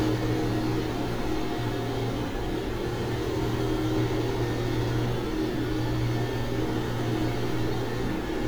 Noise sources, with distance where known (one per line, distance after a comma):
engine of unclear size